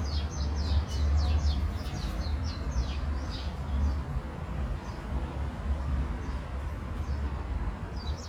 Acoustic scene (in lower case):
park